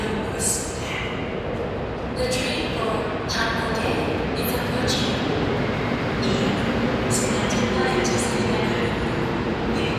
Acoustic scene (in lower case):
subway station